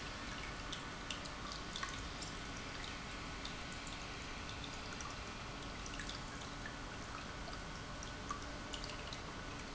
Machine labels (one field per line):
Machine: pump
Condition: normal